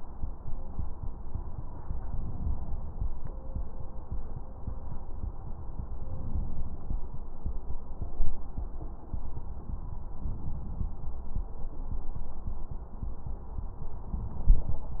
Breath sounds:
2.08-3.06 s: inhalation
5.96-6.94 s: inhalation
10.11-11.09 s: inhalation
14.09-14.85 s: inhalation

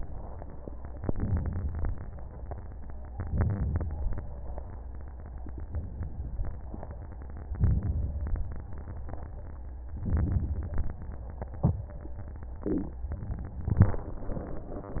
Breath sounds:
1.02-1.85 s: inhalation
3.14-3.96 s: inhalation
7.59-8.41 s: inhalation
10.00-10.83 s: inhalation
13.11-13.94 s: inhalation

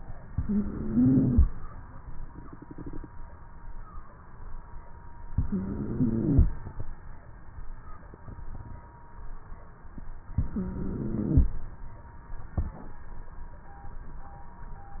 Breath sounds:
0.27-1.43 s: inhalation
0.27-1.43 s: wheeze
5.34-6.50 s: inhalation
5.34-6.50 s: wheeze
10.37-11.53 s: inhalation
10.37-11.53 s: wheeze

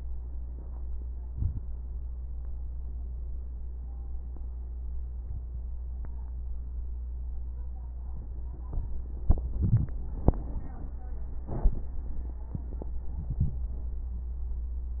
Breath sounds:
1.24-1.63 s: inhalation
13.07-13.63 s: inhalation

